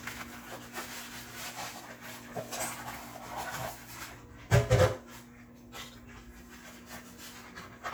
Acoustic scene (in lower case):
kitchen